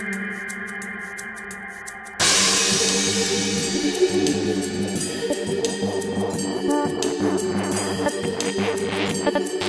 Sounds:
electronic music, music

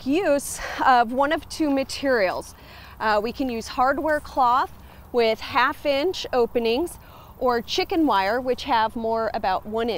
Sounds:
speech

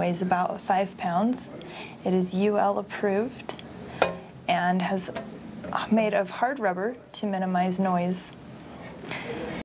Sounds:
speech

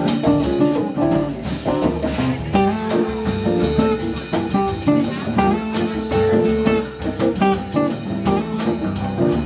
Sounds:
music, jazz, plucked string instrument, strum, musical instrument, guitar, speech

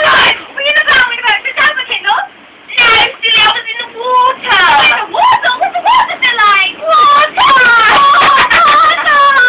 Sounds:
speech

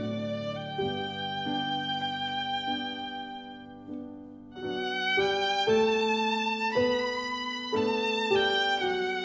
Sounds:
music, musical instrument, violin

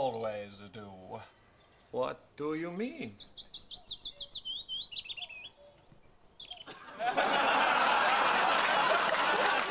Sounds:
chirp, bird, bird song

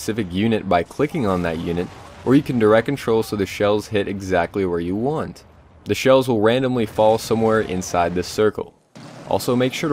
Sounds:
speech, artillery fire

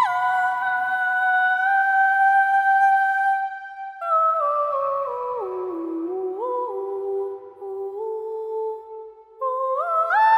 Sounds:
music

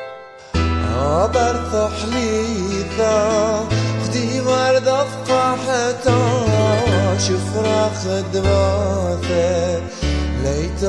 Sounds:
music, tender music

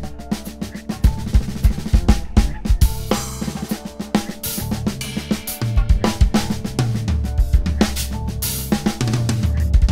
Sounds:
drum kit, rimshot, snare drum, bass drum, percussion, drum roll, drum

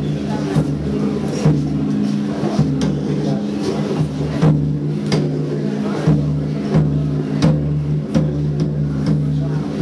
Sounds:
speech, music, musical instrument, drum, bass drum

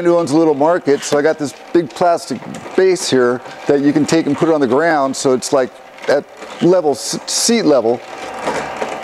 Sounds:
inside a small room, speech

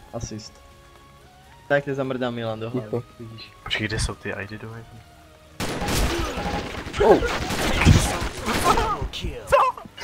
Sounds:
music, speech

